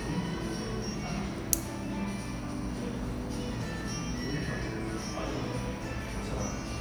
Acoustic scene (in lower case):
cafe